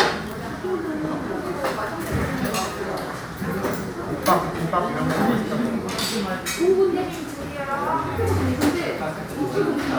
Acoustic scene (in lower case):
crowded indoor space